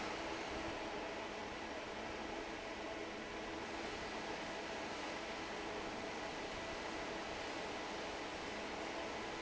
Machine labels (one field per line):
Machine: fan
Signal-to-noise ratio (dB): 6 dB